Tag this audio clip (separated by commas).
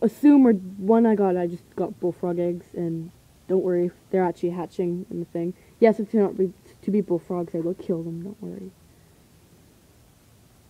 Speech